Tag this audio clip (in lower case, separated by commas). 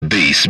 human voice, speech